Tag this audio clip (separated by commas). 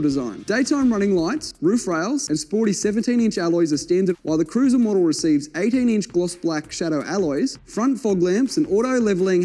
Speech, Music